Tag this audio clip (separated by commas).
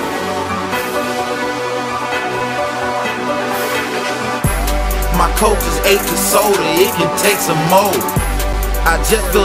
Soundtrack music, Music